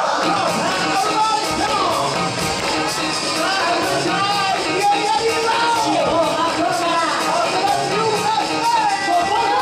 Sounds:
Speech, Music

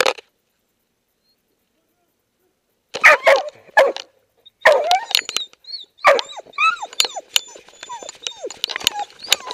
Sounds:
Animal, Dog

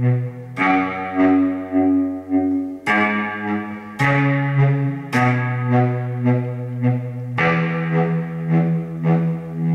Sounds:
Guitar, Strum, Plucked string instrument, Musical instrument, Electric guitar, Acoustic guitar, Music, Bass guitar

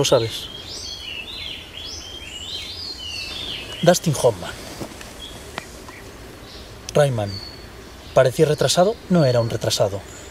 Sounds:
Environmental noise

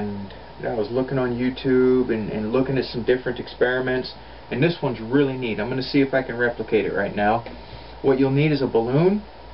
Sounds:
Speech

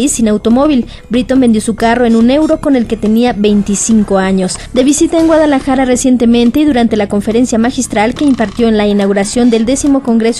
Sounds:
Radio, Speech, Music

